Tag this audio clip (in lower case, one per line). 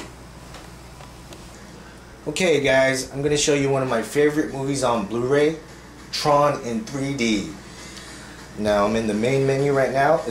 music
television
speech